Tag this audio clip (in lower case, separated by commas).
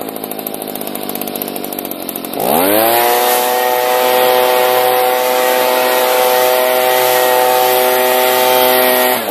power tool